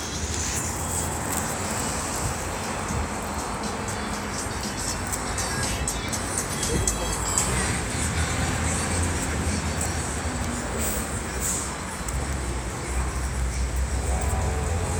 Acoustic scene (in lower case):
street